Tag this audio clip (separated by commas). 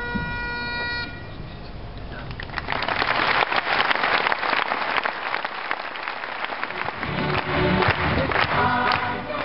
Wind instrument, Bagpipes